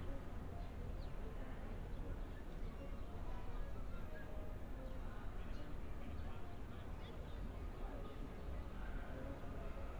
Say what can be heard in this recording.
music from a fixed source